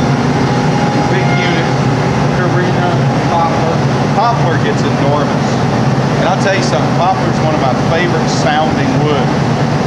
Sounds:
Speech

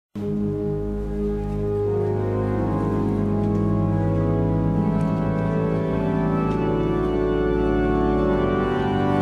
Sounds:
Keyboard (musical), Musical instrument, Music

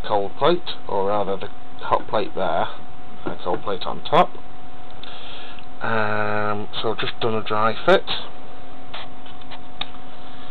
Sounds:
Speech

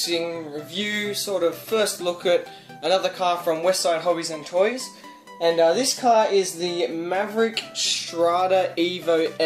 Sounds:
Speech, Music

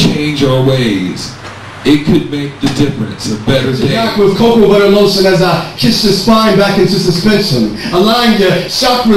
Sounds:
Speech

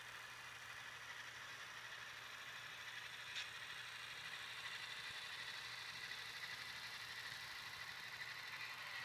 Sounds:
train wagon, Train, Rail transport

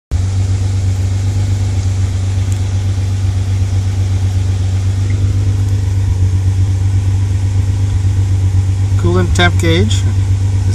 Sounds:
Speech, Car, Vehicle

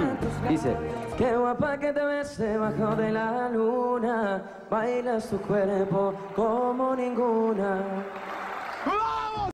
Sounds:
Speech, Music

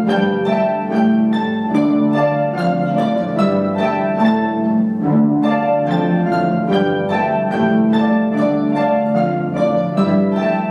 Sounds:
Classical music, Musical instrument, Plucked string instrument, Music, Orchestra

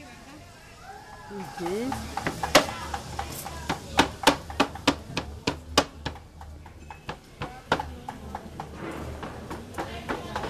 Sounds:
Speech, inside a large room or hall

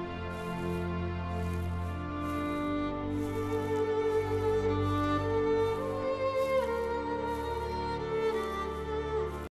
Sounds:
Music, Walk

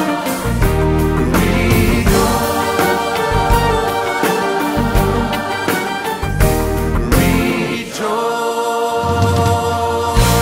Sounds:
Music, Gospel music, Christian music, Choir, Singing

